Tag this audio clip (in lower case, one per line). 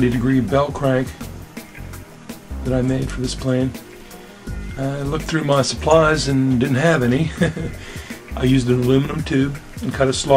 speech
music